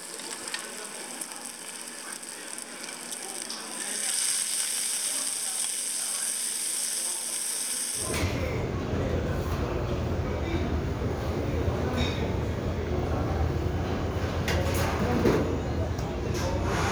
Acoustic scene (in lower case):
restaurant